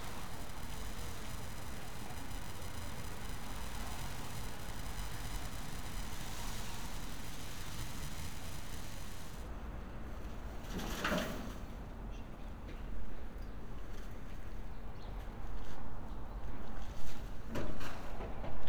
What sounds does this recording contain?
background noise